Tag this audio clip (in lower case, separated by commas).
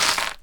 crushing